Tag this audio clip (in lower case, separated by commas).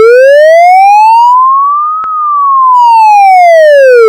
siren, alarm